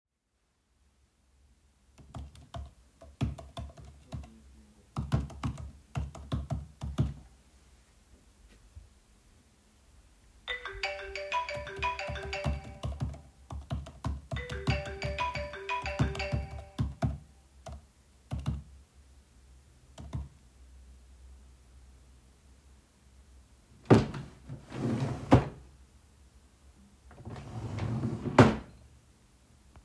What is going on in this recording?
I started by typing on a keyboard at the desk. Then a phone rang, I walked to a drawer, opened and closed it, and moved back toward the desk.